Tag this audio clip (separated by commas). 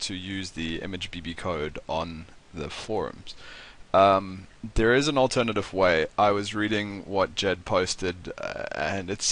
Speech